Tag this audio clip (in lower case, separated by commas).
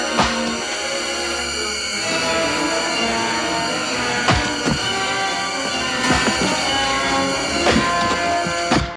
chop